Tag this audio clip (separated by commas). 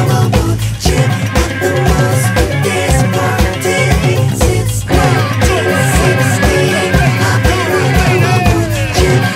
Ska